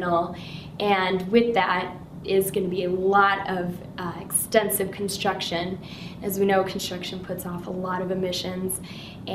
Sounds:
Female speech

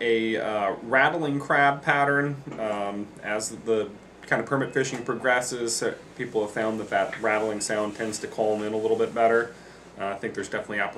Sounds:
Speech

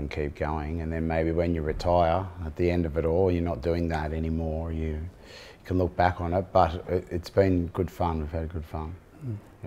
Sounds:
Speech

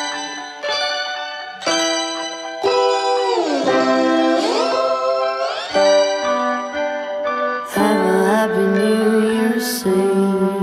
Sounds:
Music

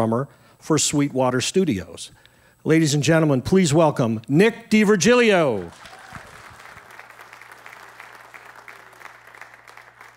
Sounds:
Applause, Speech

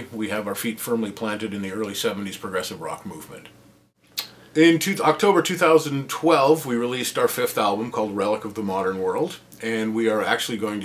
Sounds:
Speech

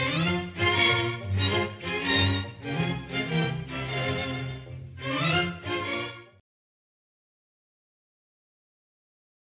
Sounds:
Music

